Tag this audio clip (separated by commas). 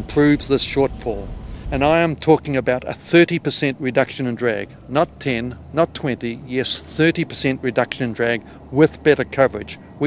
Speech